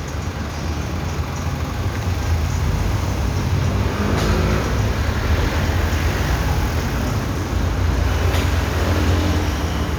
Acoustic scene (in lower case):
street